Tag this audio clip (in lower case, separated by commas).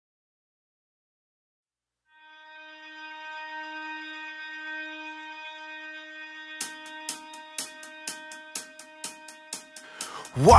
hi-hat, music